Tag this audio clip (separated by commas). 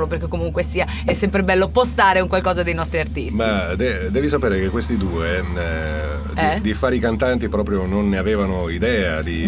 Speech